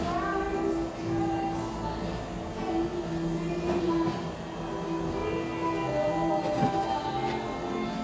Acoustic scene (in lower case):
cafe